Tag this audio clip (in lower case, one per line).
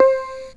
musical instrument
keyboard (musical)
music